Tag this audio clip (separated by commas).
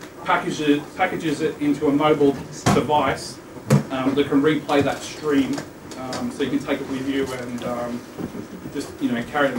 Speech